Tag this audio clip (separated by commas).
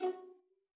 Music, Bowed string instrument, Musical instrument